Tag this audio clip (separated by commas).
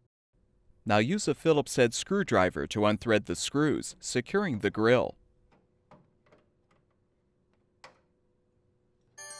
Speech